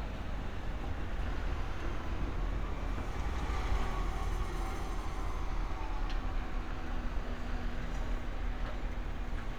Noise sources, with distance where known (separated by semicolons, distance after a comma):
large-sounding engine, near